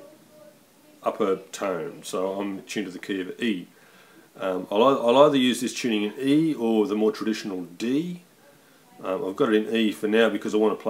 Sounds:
speech

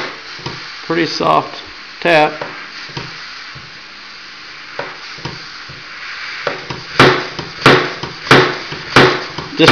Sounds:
speech

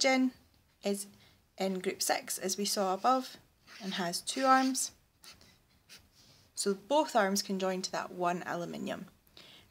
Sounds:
writing
speech

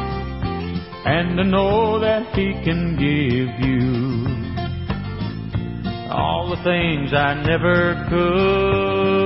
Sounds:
music

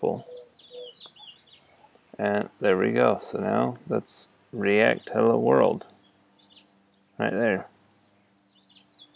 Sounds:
chirp
bird vocalization
bird

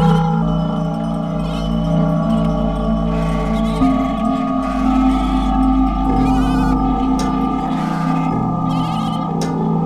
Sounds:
singing bowl

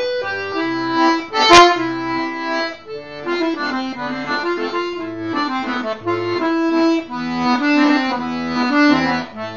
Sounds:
music

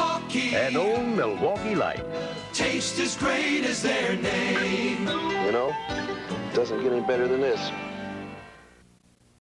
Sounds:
music
speech

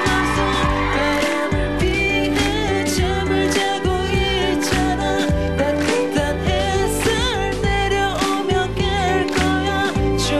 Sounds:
music

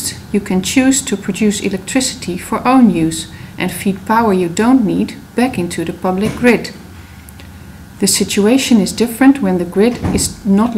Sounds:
speech

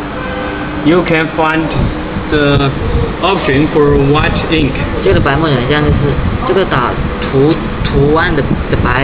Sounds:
speech

